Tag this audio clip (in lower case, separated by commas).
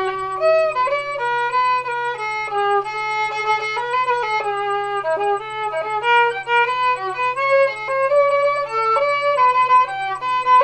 fiddle, musical instrument, music